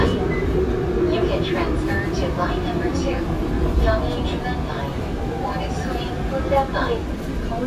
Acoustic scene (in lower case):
subway train